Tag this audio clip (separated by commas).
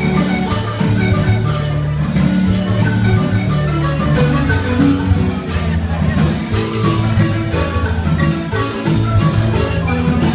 Crowd, xylophone, Music